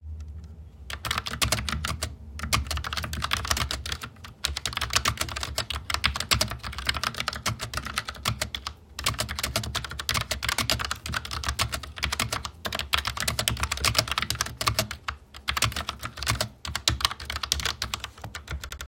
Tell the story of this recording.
I sat at my desk and typed on my keyboard for the duration of the recording.